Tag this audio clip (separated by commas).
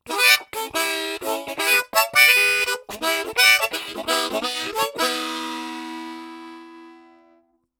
Harmonica, Music, Musical instrument